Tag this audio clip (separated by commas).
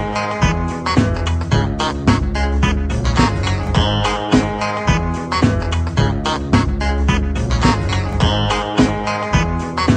Electronic music, Music, Trance music, Funk